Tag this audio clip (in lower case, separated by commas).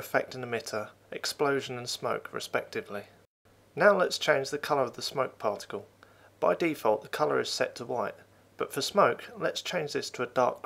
speech